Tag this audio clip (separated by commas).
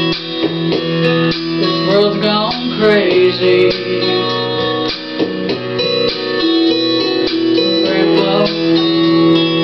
Female singing, Music